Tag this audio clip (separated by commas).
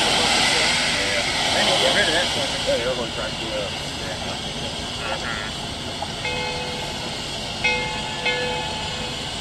Speech